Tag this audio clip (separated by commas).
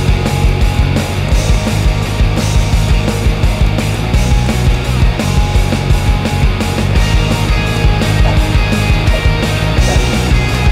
Music